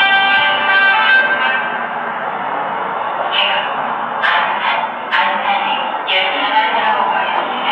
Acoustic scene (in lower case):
subway station